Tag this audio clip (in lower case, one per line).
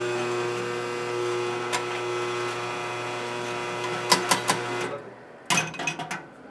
domestic sounds